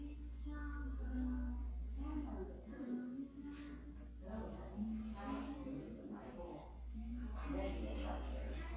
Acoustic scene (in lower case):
crowded indoor space